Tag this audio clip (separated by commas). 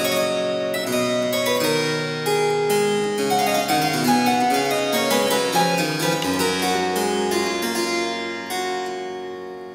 playing harpsichord